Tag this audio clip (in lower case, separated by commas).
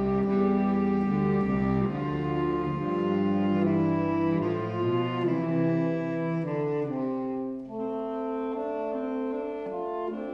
musical instrument, saxophone, music, brass instrument